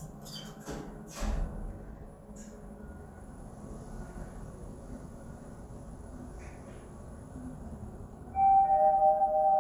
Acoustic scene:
elevator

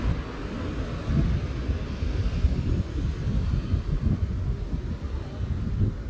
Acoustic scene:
street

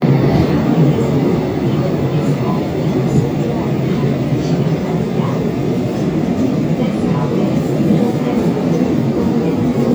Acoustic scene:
subway train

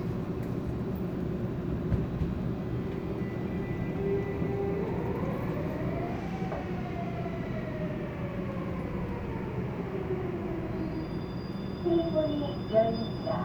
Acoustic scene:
subway train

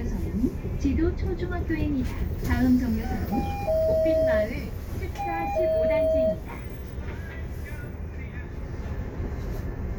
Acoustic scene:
bus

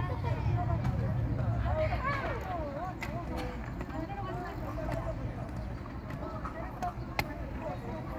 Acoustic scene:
park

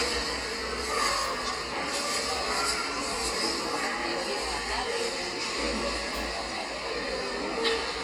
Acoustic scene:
subway station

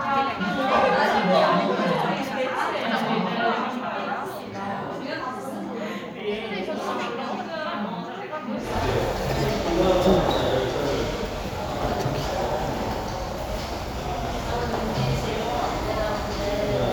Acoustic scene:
crowded indoor space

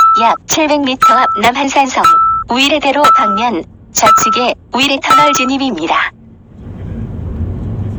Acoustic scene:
car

